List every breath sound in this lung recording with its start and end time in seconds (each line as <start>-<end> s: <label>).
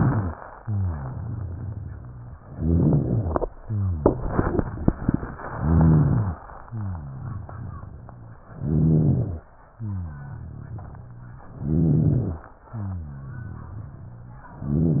0.00-0.34 s: rhonchi
0.56-2.38 s: exhalation
0.58-2.36 s: rhonchi
2.40-3.42 s: inhalation
2.40-3.42 s: rhonchi
3.56-5.42 s: exhalation
3.56-5.42 s: rhonchi
5.40-6.36 s: inhalation
5.50-6.36 s: rhonchi
6.44-8.48 s: exhalation
6.64-8.44 s: rhonchi
8.54-9.52 s: inhalation
8.54-9.52 s: rhonchi
9.60-11.50 s: exhalation
9.74-11.50 s: rhonchi
11.50-12.58 s: inhalation
11.50-12.58 s: rhonchi
12.64-14.56 s: exhalation
12.64-14.56 s: rhonchi